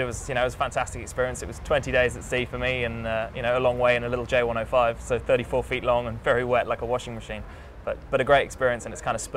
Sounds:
Speech

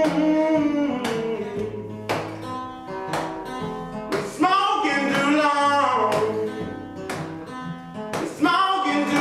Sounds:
Music, Pizzicato

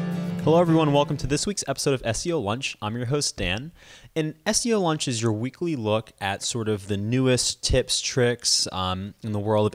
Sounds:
Music, Speech

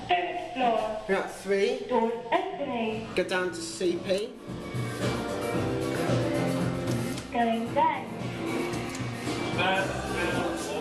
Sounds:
Speech, Music

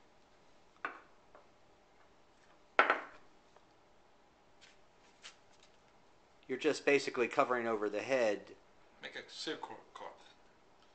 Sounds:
Speech, inside a small room

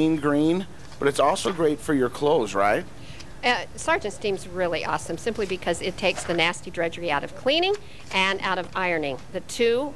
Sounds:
Speech

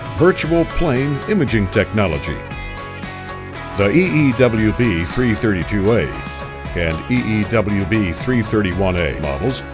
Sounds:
Music, Speech

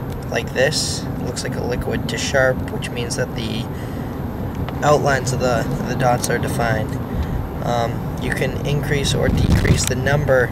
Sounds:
Speech

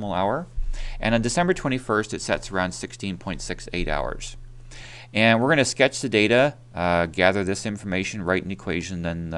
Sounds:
Speech

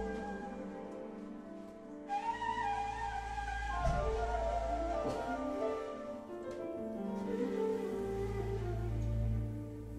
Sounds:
Musical instrument, Music

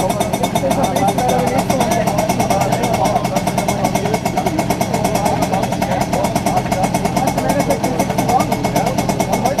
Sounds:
Speech

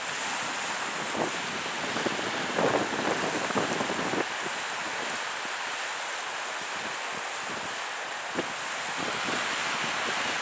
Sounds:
Ship, Water vehicle, Vehicle, surf

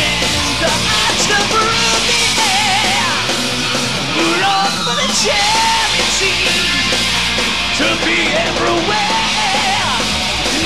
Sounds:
Music

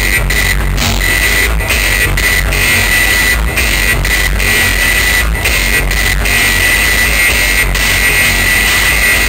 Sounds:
Trance music, Music, Electronic music, Techno

